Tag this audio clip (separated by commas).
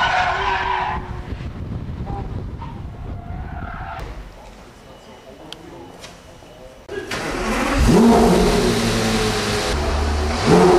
Crackle